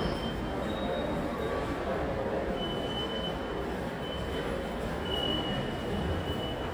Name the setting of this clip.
subway station